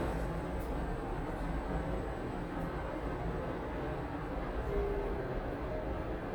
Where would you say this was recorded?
in an elevator